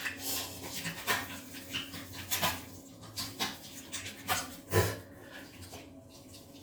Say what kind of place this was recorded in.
restroom